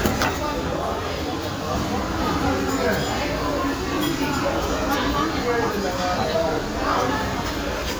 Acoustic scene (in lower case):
restaurant